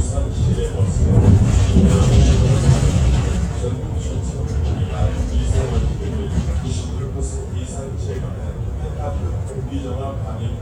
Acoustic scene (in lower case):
bus